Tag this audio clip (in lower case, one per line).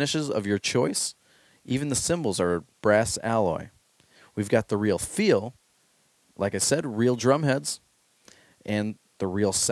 speech